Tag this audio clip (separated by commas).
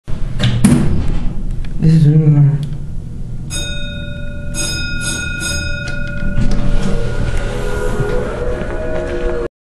Speech